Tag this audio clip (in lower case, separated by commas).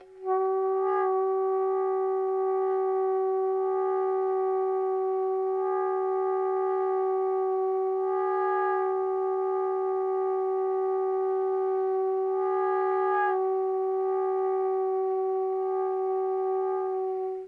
musical instrument, wind instrument, music